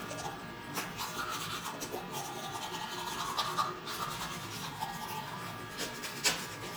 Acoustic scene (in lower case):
restroom